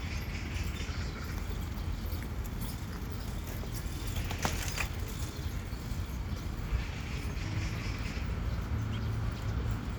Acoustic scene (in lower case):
park